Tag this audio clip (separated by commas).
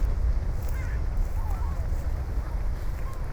Animal, Bird, Wind, Wild animals, seagull